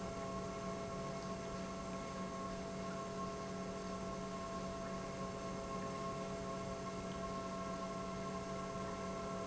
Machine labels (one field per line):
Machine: pump